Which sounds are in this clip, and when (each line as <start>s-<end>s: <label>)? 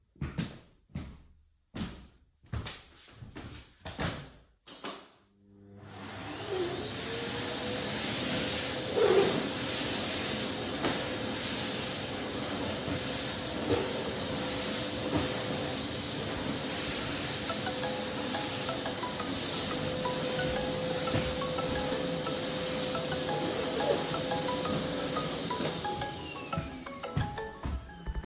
0.0s-4.4s: footsteps
4.6s-28.3s: vacuum cleaner
17.4s-28.3s: phone ringing
26.1s-28.3s: footsteps